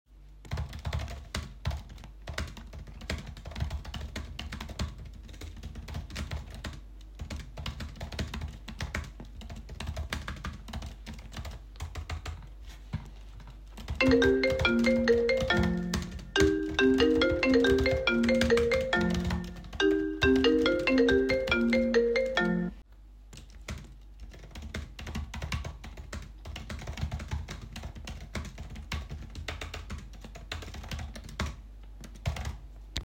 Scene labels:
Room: office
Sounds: keyboard typing, phone ringing

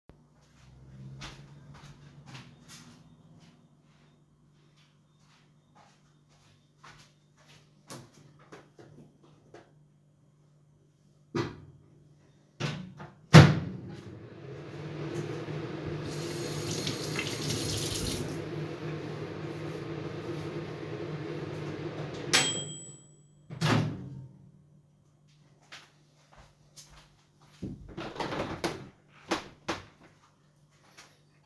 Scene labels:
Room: kitchen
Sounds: footsteps, microwave, running water, window

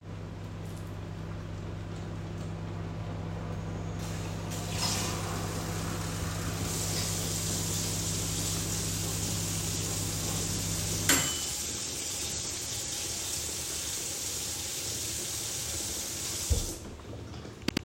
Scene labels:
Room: kitchen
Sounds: microwave, running water

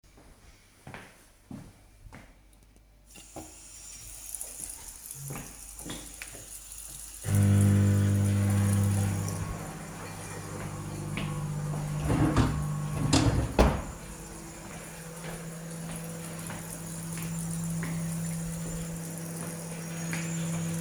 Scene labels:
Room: kitchen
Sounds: footsteps, running water, microwave, wardrobe or drawer

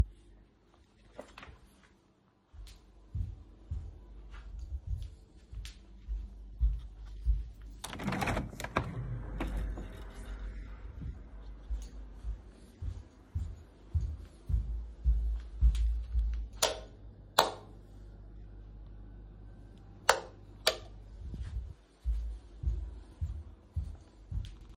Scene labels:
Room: office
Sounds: footsteps, window, light switch

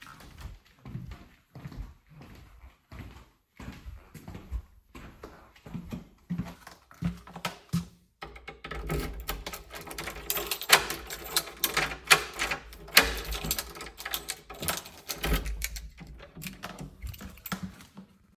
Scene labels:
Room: living room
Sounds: footsteps, door, keys

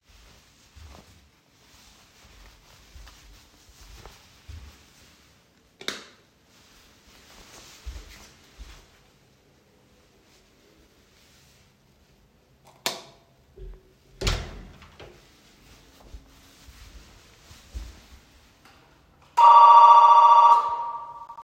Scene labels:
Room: hallway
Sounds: footsteps, light switch, door, bell ringing

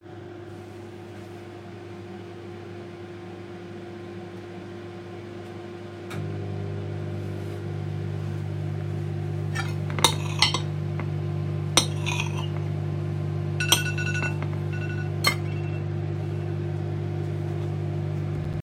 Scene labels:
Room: kitchen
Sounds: microwave, cutlery and dishes, phone ringing

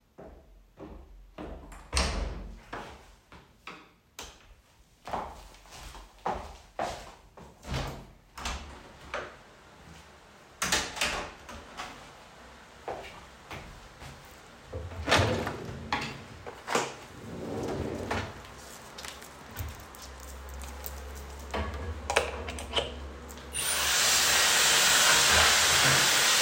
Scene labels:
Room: lavatory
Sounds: footsteps, door, light switch, window, wardrobe or drawer

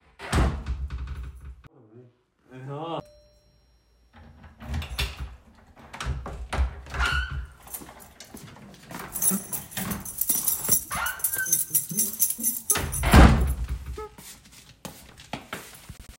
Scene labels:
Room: hallway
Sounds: wardrobe or drawer (more than once), door (more than once), bell ringing, keys, footsteps

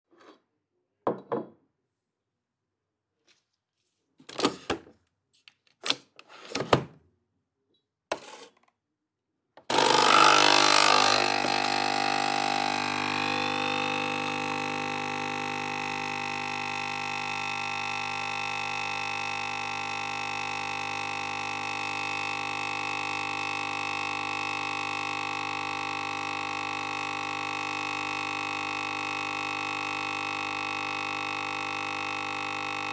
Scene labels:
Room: kitchen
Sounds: cutlery and dishes, coffee machine

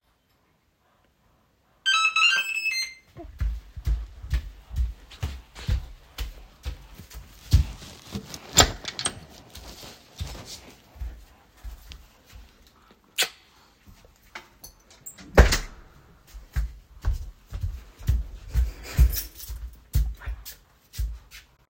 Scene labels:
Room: hallway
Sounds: bell ringing, footsteps, door (more than once), keys

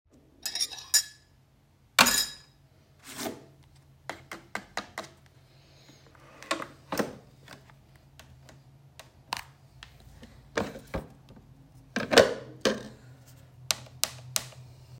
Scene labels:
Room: kitchen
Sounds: cutlery and dishes

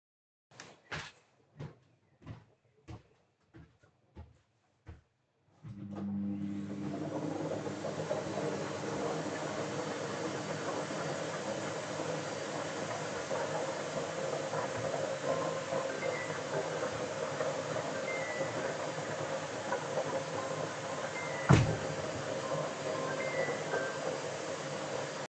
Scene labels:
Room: bedroom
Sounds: footsteps, vacuum cleaner, phone ringing, window

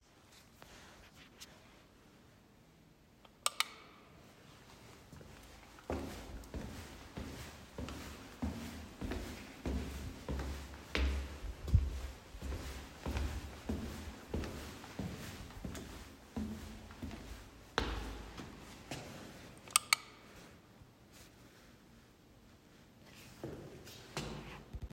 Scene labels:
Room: hallway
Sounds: light switch, footsteps

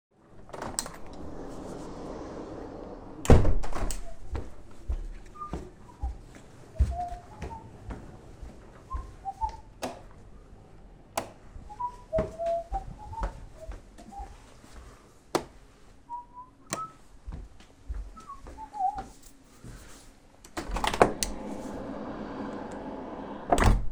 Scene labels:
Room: living room, hallway, office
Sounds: door, footsteps, light switch, window (more than once)

